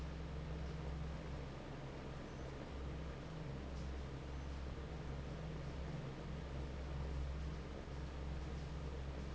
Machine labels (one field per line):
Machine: fan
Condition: normal